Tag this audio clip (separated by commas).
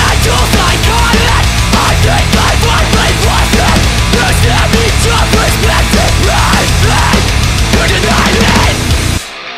Music